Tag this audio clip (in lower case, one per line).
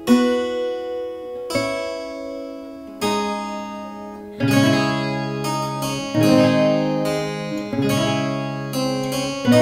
music
blues
playing harpsichord
harpsichord